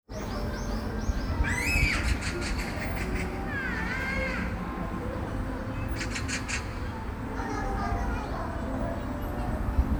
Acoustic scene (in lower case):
park